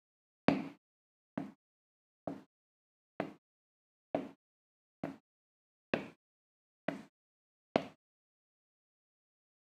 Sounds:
Walk

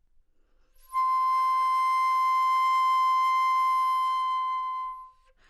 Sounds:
Wind instrument, Music, Musical instrument

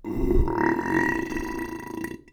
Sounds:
Burping

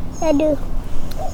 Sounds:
Child speech, Human voice, Speech

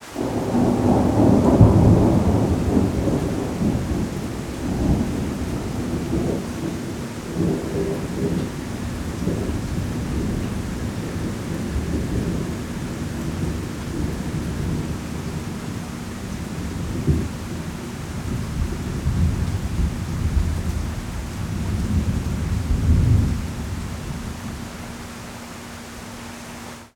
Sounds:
Thunderstorm, Water, Rain, Thunder

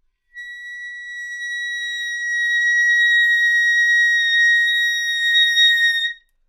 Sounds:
Musical instrument, Music, woodwind instrument

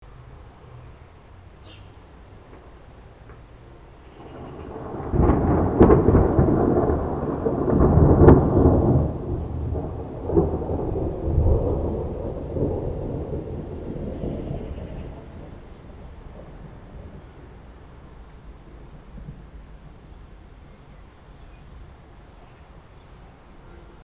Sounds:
Thunder, Thunderstorm

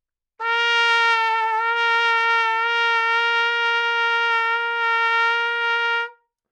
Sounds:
Trumpet, Musical instrument, Brass instrument, Music

